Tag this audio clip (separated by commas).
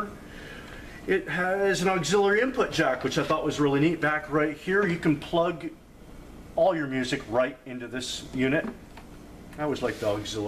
Speech